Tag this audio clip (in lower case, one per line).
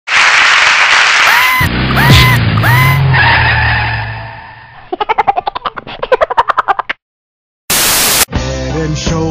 music